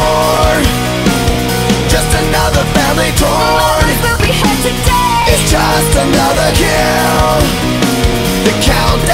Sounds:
grunge

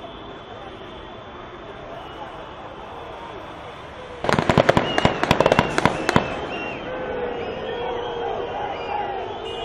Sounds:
artillery fire

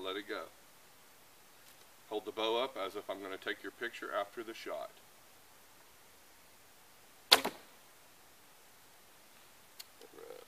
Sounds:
arrow

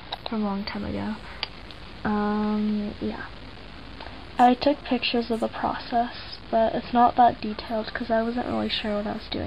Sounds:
speech
inside a small room

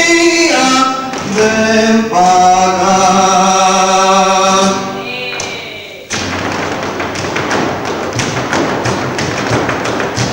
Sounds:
flamenco
thud

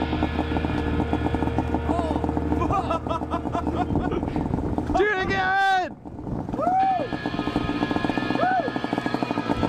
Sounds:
speech
music

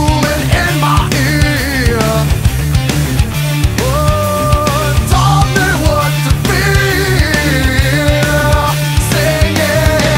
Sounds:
music
happy music

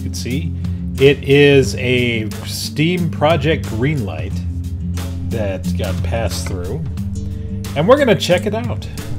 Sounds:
music
speech

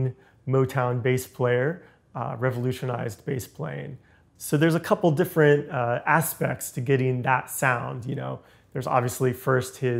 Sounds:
speech

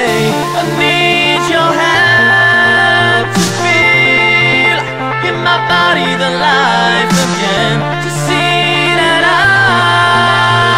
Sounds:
music

